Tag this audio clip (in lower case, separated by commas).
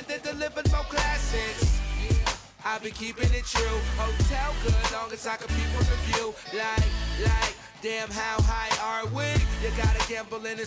music